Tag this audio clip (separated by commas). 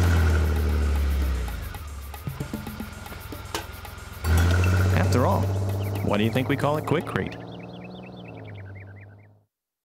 Vehicle, vroom, Speech, Music